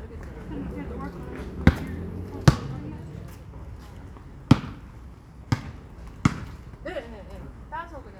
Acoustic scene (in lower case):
residential area